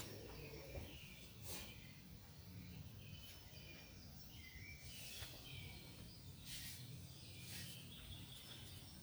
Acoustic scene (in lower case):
park